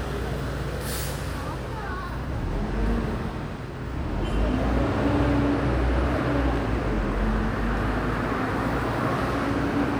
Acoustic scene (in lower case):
residential area